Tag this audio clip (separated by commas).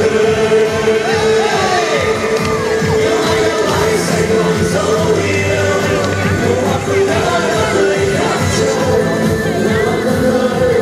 Grunge, Pop music, Punk rock, Music